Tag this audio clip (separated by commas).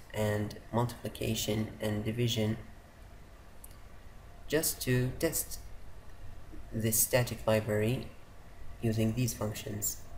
Speech